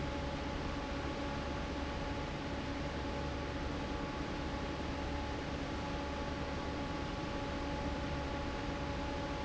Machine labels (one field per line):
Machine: fan